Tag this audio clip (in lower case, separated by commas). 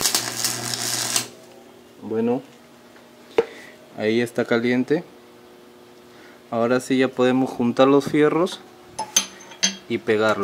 arc welding